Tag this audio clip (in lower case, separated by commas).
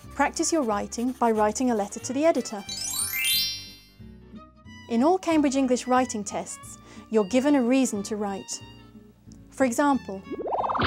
speech, music